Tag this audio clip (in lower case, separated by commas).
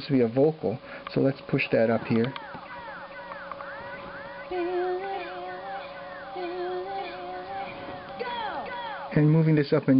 inside a small room, speech